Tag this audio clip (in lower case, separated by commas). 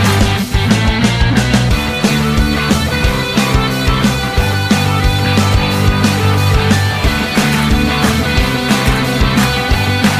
music